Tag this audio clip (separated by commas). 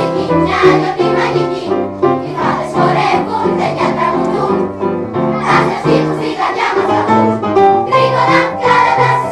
Music